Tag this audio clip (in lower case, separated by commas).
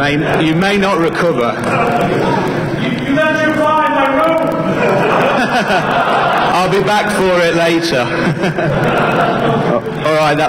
speech